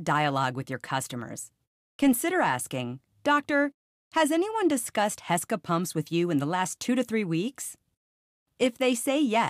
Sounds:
Speech

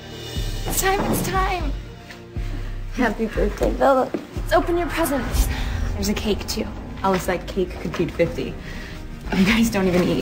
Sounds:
Speech, Music

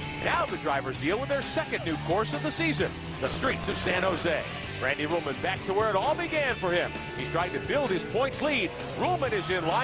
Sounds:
Car, Vehicle, Speech, Motor vehicle (road), Car passing by, Music

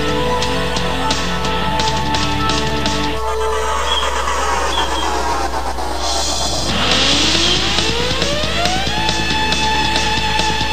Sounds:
Music

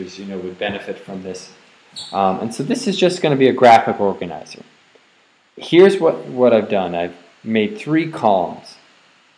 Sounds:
Speech

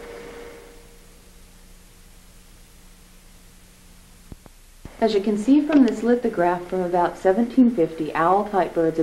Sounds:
Speech

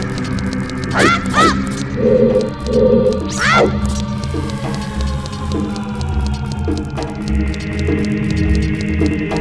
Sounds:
Music

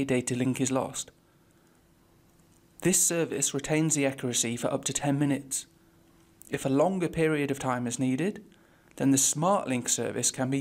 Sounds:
Speech

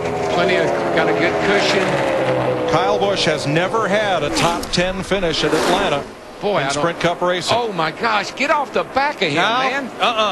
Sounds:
Speech

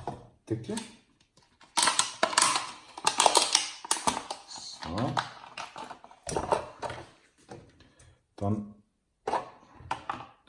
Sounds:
plastic bottle crushing

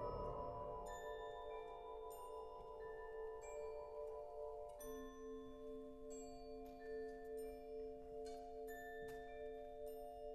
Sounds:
Music

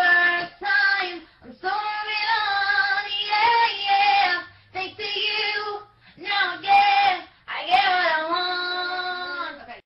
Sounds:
Female singing

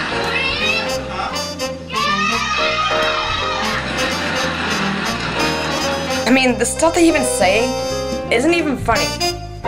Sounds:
chortle, Music, Speech

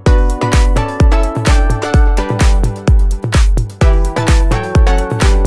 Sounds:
Music

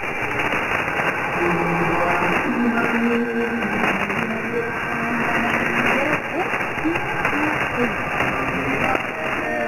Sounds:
Speech, Music, Echo

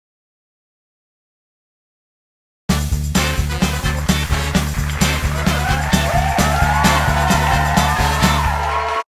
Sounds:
Music

